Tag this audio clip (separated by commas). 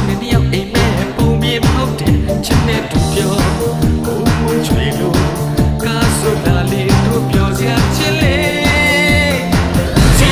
Music